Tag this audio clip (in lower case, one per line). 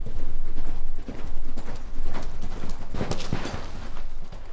livestock
animal